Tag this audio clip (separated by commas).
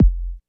Bass drum, Percussion, Drum, Music, Musical instrument